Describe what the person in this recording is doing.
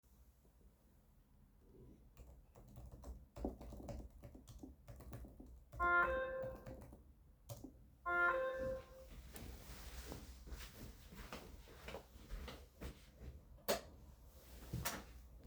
I was typing on a keyboard when my phone started ringing. I got up, walked and closed the door.